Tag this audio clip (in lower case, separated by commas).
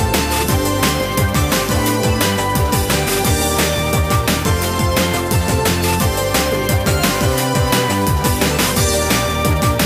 music